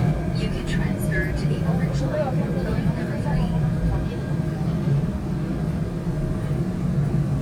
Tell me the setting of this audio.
subway train